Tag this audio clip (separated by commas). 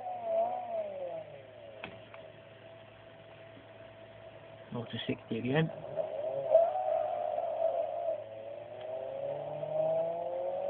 Speech, Car, inside a small room